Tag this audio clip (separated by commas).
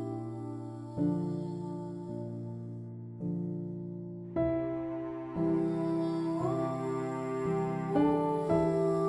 Music